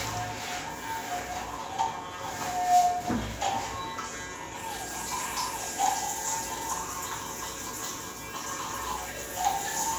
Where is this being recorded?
in a restroom